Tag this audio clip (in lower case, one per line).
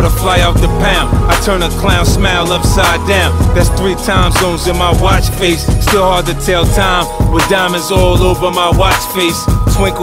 music
pop music